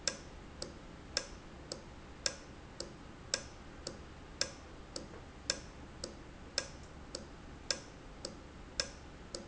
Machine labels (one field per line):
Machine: valve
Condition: normal